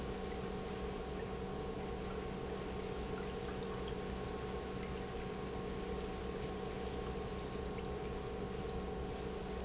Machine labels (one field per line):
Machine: pump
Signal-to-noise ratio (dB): 0 dB